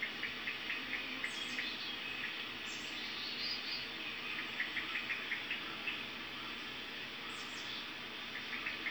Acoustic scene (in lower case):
park